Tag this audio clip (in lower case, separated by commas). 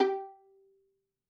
bowed string instrument, musical instrument, music